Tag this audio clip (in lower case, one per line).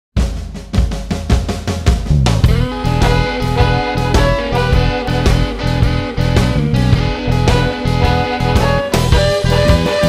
bass drum
drum
cymbal
hi-hat
drum kit